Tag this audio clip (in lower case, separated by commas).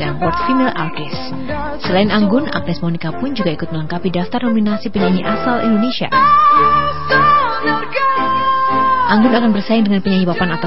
speech, music